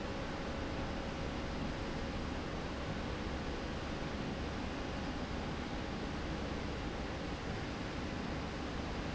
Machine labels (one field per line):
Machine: slide rail